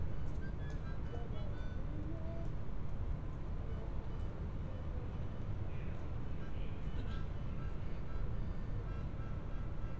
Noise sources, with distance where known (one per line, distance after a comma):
music from an unclear source, far